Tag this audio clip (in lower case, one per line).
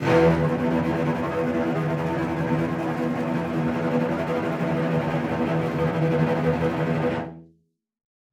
bowed string instrument
musical instrument
music